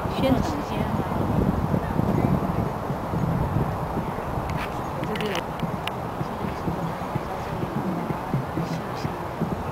Wind blowing while a woman speaks